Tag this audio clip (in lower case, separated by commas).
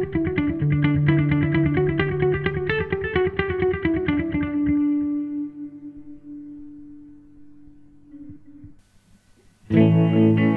strum, acoustic guitar, guitar, musical instrument, music